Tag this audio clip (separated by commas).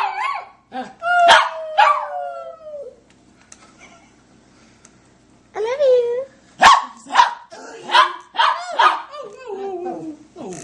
Animal, Speech